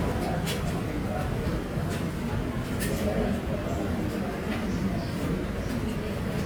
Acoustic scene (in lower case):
subway station